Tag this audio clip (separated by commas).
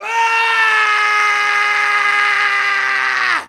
Screaming, Human voice